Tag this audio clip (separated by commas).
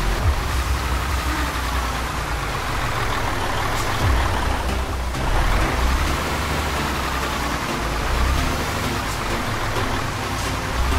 Music, Vehicle